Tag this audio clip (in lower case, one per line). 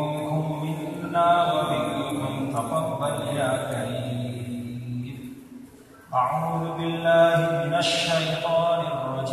chant